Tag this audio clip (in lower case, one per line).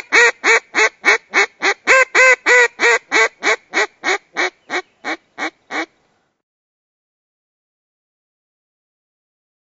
quack